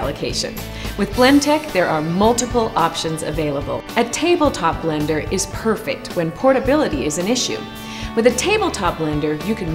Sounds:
Music, Speech

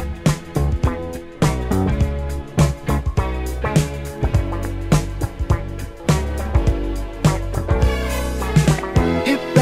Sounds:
Music

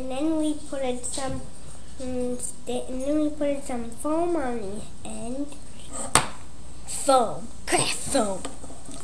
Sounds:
Speech

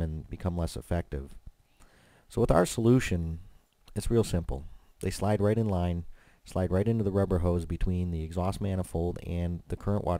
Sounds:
Speech

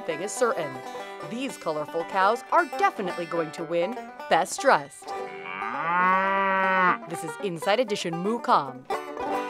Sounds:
cow lowing

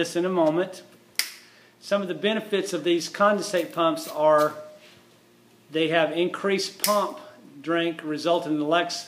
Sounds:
Speech

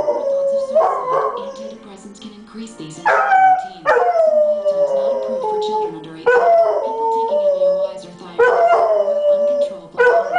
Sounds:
Speech, pets, Animal, Whimper (dog), Music, Dog, Bow-wow, Yip

